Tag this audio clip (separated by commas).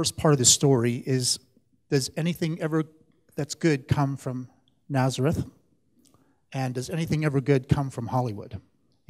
Speech